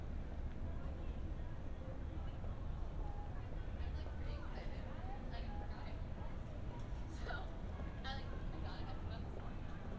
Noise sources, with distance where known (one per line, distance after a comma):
person or small group talking, near